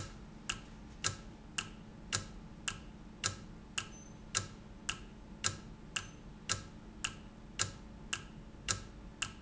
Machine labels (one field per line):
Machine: valve